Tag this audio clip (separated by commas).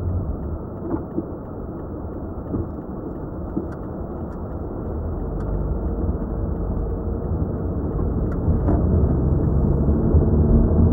Motor vehicle (road), Car, Vehicle